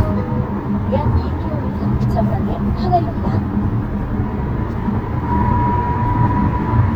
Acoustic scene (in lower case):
car